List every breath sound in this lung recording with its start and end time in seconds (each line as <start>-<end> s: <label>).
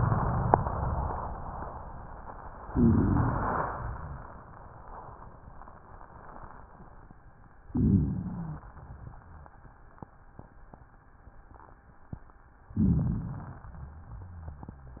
2.66-3.73 s: inhalation
2.66-3.51 s: stridor
3.73-5.18 s: exhalation
7.68-8.65 s: inhalation
7.71-8.55 s: rhonchi
8.71-10.18 s: exhalation
12.71-13.55 s: rhonchi
12.72-13.69 s: inhalation
13.67-15.00 s: exhalation
13.67-15.00 s: rhonchi